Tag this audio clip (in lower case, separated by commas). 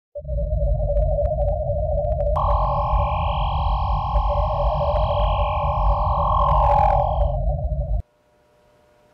speech, inside a small room, music